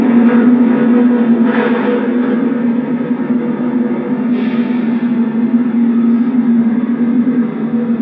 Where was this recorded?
on a subway train